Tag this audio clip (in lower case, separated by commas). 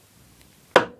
hammer, tap, tools